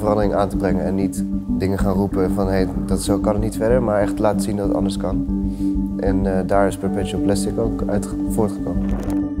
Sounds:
music, speech

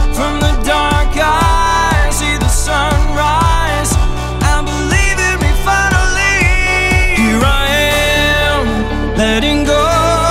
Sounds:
soul music, music

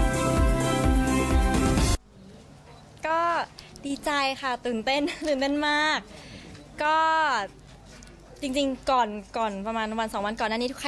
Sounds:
speech, music

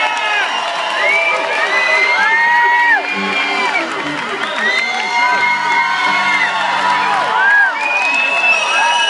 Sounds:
crowd, people crowd

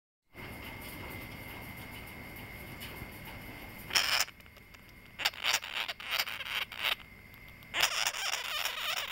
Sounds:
animal

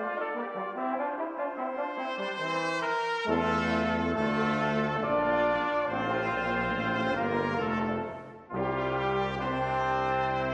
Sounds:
french horn, brass instrument, trombone, trumpet

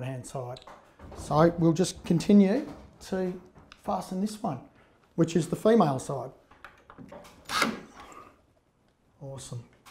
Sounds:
speech, inside a small room

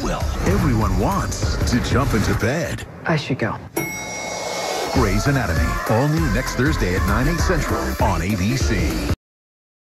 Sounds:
music, speech

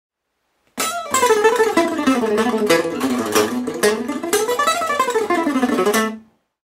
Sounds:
musical instrument, music, acoustic guitar, guitar, strum

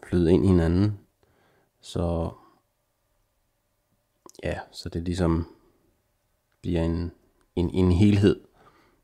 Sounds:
speech

